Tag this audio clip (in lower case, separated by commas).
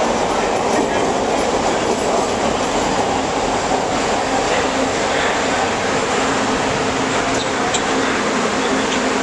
railroad car, underground, rail transport, train, speech, vehicle